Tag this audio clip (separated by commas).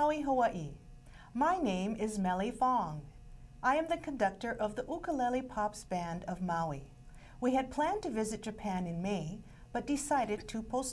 Speech